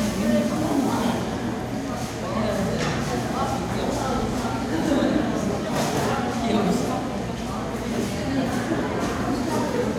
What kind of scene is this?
crowded indoor space